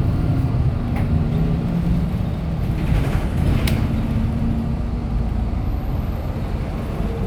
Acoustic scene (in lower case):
bus